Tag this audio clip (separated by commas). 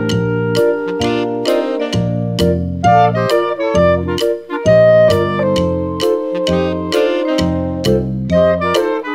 Music